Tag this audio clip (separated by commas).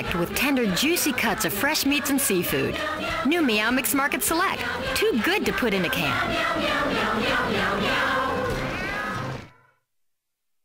Animal, Music, Cat, Speech, Domestic animals, Meow